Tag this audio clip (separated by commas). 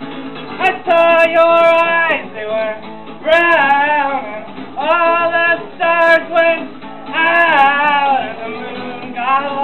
Music, Male singing